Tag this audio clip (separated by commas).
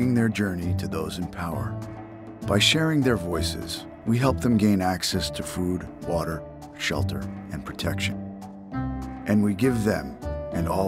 Music, Speech